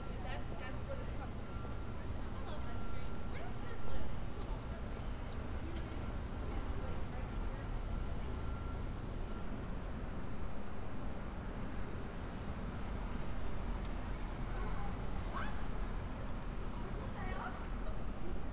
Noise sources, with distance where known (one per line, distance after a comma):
person or small group talking, near